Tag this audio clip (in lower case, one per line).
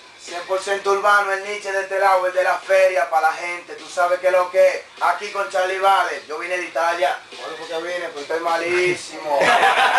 speech